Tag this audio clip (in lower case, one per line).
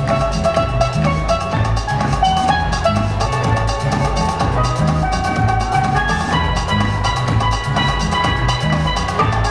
musical instrument
music
drum